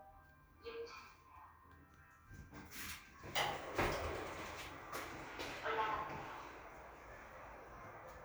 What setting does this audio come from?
elevator